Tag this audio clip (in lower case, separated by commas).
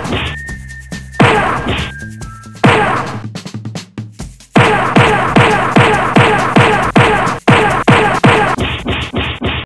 music